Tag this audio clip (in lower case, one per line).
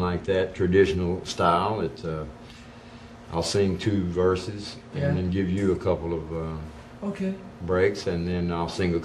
speech